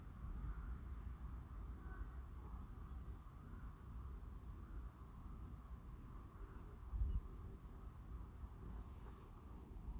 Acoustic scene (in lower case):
residential area